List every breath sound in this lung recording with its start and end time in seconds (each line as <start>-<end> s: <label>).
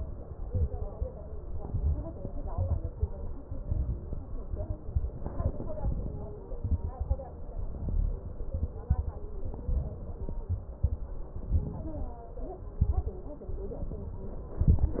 0.42-1.00 s: inhalation
0.42-1.00 s: crackles
1.52-2.11 s: inhalation
1.52-2.11 s: crackles
2.51-3.10 s: inhalation
2.51-3.10 s: crackles
3.57-4.16 s: inhalation
3.57-4.16 s: crackles
4.88-5.47 s: inhalation
4.88-5.47 s: crackles
6.61-7.20 s: inhalation
6.61-7.20 s: crackles
7.62-8.21 s: inhalation
7.62-8.21 s: crackles
8.53-9.01 s: inhalation
8.53-9.01 s: crackles
9.61-10.10 s: inhalation
9.61-10.10 s: crackles
10.49-10.97 s: inhalation
10.49-10.97 s: crackles
11.40-11.88 s: inhalation
11.40-11.88 s: crackles
12.79-13.21 s: inhalation
12.79-13.21 s: crackles
14.61-15.00 s: inhalation
14.61-15.00 s: crackles